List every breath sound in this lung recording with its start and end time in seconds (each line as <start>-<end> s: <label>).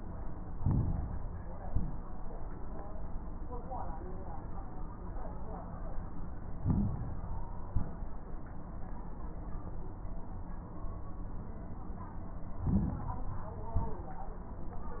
0.51-1.59 s: inhalation
0.51-1.59 s: crackles
1.61-2.18 s: exhalation
1.61-2.18 s: crackles
6.57-7.66 s: inhalation
6.57-7.66 s: crackles
7.71-8.28 s: exhalation
7.71-8.28 s: crackles
12.52-13.60 s: inhalation
12.52-13.60 s: crackles
13.74-14.31 s: exhalation
13.74-14.31 s: crackles